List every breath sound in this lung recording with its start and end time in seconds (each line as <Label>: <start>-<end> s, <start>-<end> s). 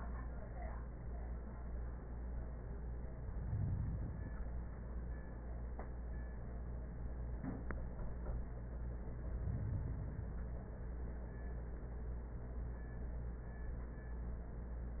Inhalation: 3.05-4.55 s, 9.06-10.56 s